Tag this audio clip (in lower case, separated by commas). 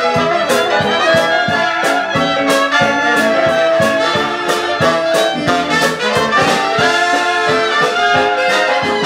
music